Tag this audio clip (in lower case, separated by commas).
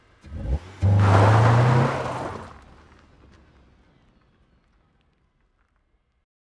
engine, car, revving, motor vehicle (road), vehicle